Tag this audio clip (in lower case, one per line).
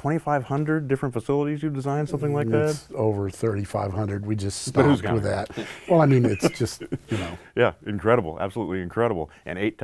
speech